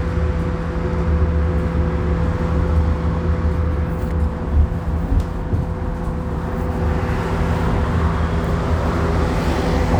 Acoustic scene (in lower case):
bus